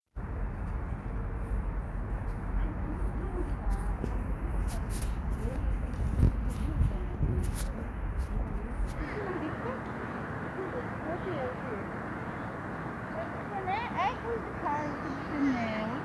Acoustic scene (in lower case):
residential area